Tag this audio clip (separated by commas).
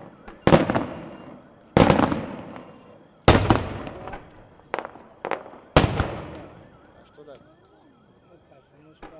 Speech, Fireworks, Explosion